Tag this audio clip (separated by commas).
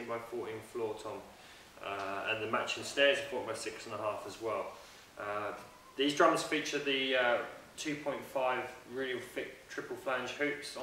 Speech